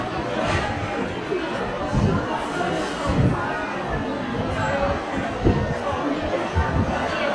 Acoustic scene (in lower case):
crowded indoor space